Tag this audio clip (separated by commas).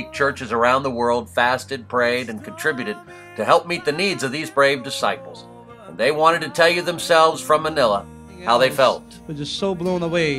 monologue, Speech, man speaking, Music